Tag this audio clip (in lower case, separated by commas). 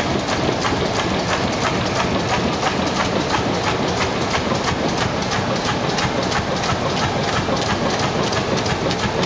engine, idling